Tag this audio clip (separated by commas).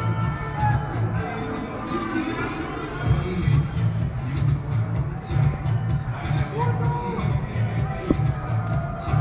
Music, Speech